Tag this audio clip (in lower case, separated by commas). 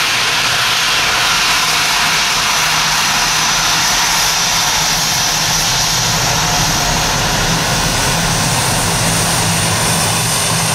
vehicle, aircraft engine, fixed-wing aircraft, outside, rural or natural